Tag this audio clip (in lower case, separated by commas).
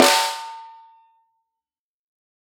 musical instrument, snare drum, music, percussion, drum